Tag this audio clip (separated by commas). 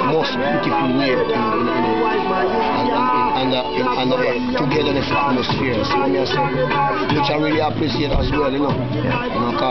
Speech, Music